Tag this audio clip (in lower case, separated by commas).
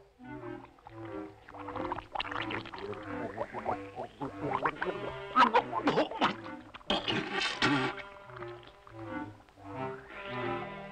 music